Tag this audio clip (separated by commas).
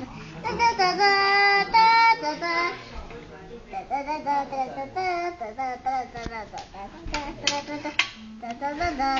Child singing, Speech